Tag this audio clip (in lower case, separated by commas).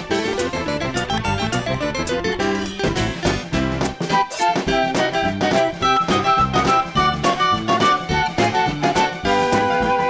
flute, woodwind instrument